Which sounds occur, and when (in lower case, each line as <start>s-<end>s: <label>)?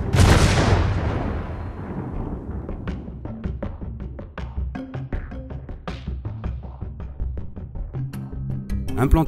0.0s-2.6s: artillery fire
2.6s-9.2s: music